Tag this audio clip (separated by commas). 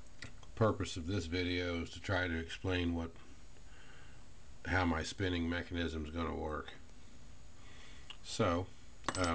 Speech